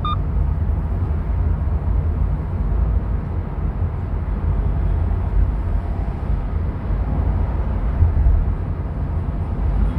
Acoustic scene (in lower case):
car